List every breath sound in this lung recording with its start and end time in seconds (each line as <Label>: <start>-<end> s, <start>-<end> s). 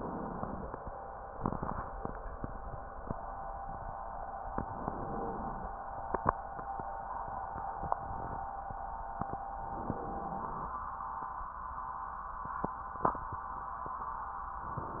Inhalation: 4.47-5.10 s, 9.65-10.28 s
Exhalation: 5.10-5.72 s, 10.25-10.80 s